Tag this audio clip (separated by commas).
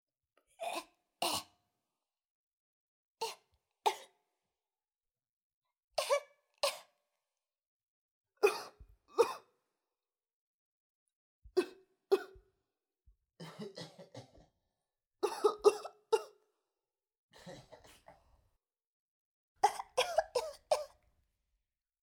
Respiratory sounds, Cough